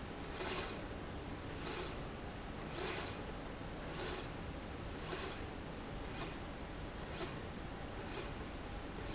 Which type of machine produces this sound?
slide rail